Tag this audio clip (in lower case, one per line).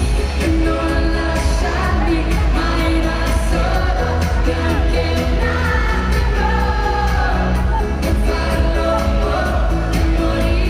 music
speech